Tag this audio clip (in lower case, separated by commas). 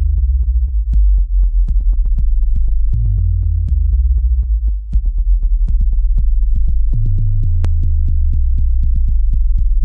music